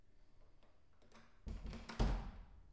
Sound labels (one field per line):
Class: door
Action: closing